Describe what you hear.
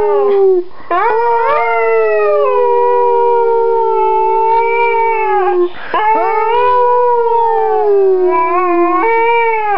A dog wimping or yip